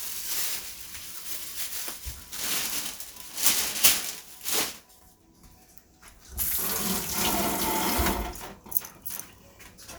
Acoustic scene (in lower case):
kitchen